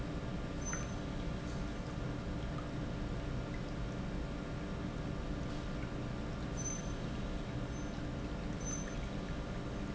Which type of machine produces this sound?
pump